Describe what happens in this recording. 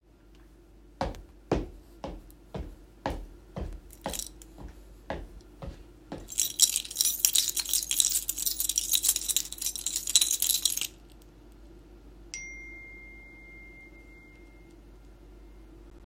I placed keys on the table while my phone produced a notification sound.